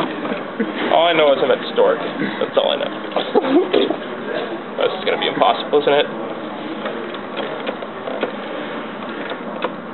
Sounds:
inside a public space, Speech

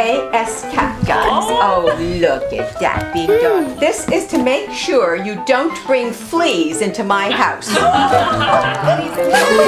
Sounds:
Speech, Music

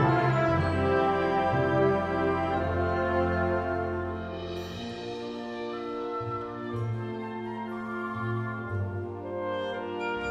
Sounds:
Music, Orchestra

